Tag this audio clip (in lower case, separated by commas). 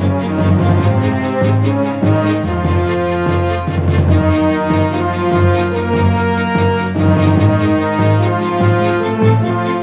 music